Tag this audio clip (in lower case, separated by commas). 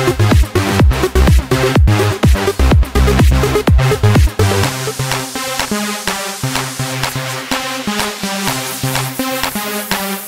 music, sound effect